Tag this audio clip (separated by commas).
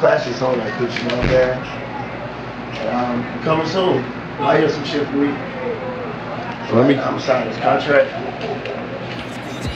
Speech, Music